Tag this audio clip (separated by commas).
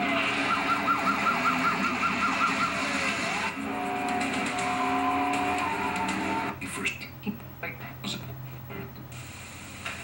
Speech, Music, inside a small room, Television